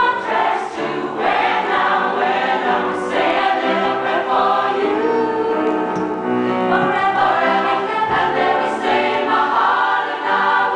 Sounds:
music
male singing
choir
female singing

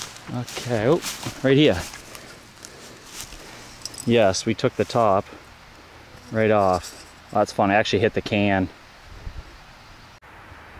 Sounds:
speech

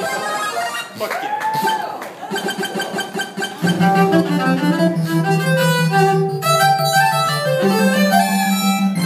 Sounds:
music
musical instrument
violin

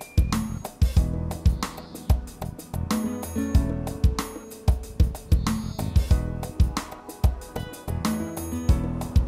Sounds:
music

